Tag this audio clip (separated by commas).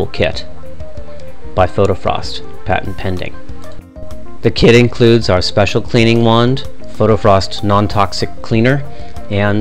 Music, Speech